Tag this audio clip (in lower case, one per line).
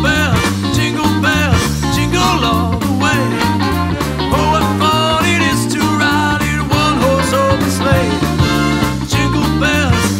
music
jingle (music)